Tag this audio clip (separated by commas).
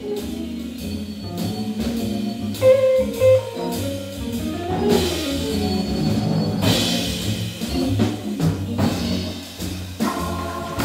Music, Musical instrument, Plucked string instrument, Drum kit, Jazz